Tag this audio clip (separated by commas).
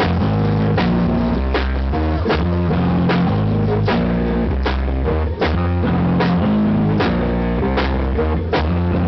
Music